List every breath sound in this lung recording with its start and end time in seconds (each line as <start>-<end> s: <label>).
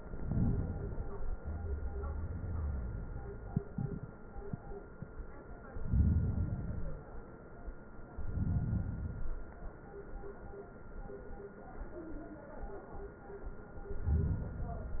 0.00-1.38 s: inhalation
1.40-3.78 s: exhalation
5.61-7.25 s: inhalation
8.13-9.76 s: inhalation
13.67-15.00 s: inhalation